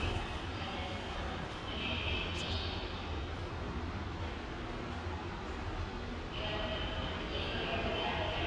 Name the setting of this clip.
subway station